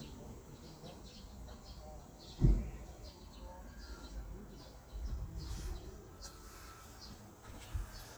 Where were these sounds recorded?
in a park